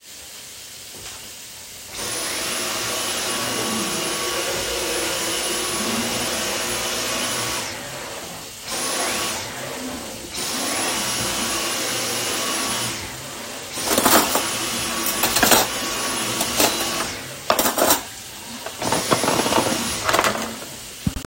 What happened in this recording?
While the water in the kitchen sink was running I was vacuuming and putting away cutlery all at the same time.